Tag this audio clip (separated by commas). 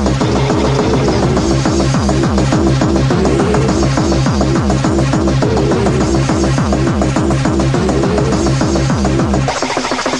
Techno, Electronic music, Music